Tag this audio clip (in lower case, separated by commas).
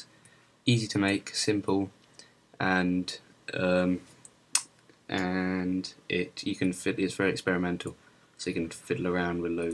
speech